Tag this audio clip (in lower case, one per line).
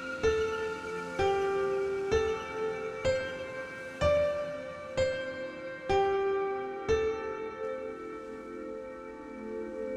tubular bells